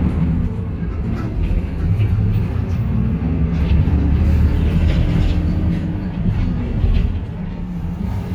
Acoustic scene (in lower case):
bus